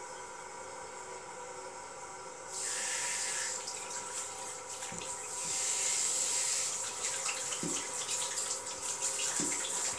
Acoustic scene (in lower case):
restroom